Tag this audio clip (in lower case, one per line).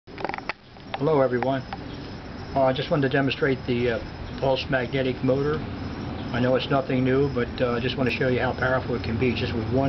outside, rural or natural
speech